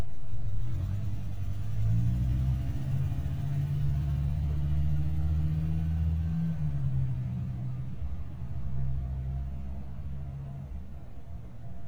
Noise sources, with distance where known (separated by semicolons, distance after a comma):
engine of unclear size, far